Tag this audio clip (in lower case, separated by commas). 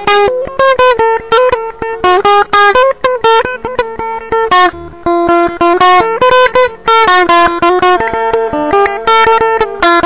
musical instrument, guitar, music